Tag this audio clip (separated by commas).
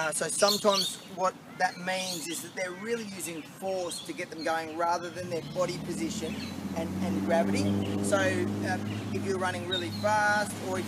outside, urban or man-made, Speech